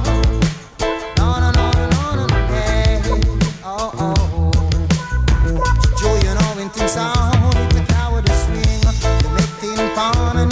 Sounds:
Music, Reggae

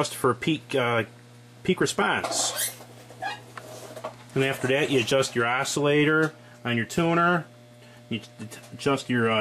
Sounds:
Speech

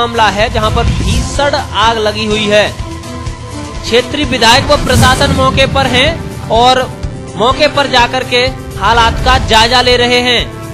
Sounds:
Speech, Music

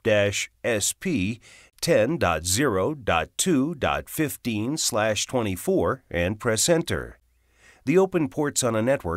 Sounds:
Speech

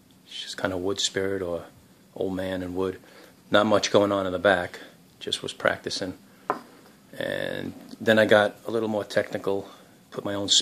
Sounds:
Speech

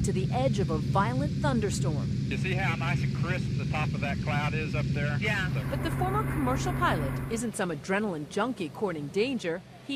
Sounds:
Speech

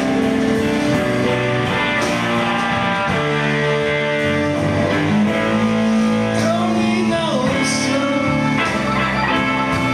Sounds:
Blues, Musical instrument, Guitar, Strum, Plucked string instrument, Music, Electric guitar, Acoustic guitar

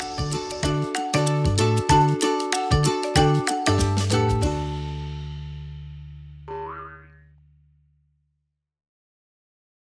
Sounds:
Music, Silence

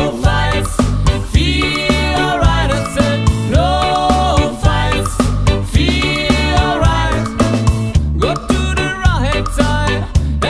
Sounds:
Music

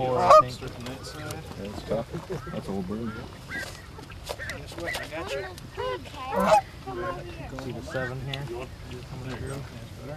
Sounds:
Fowl, Honk, Goose

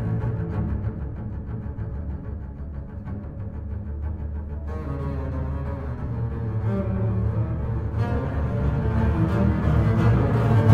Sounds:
Cello, Double bass, Music

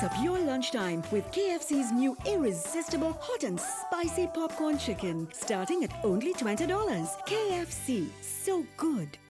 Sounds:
Music, Speech

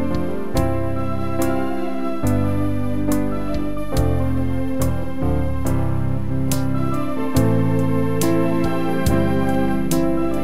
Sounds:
playing electronic organ

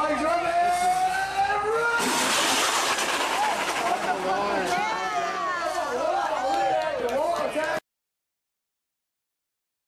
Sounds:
Speech

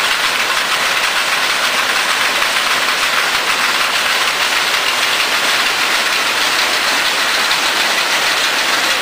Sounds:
Speech, inside a small room

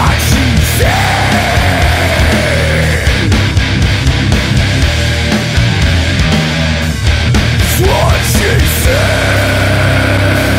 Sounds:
Music

